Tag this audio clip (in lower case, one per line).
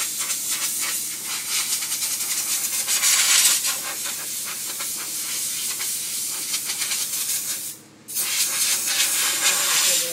spray